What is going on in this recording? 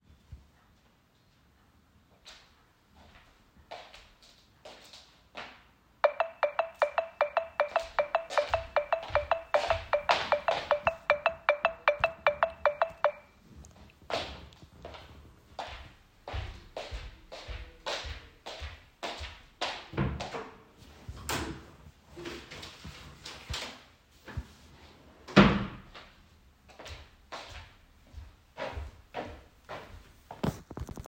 A phone started ringing in the room while I walked toward it. The footsteps overlapped with the ringtone for a noticeable interval. After that, I opened and closed a wardrobe drawer and then walked again.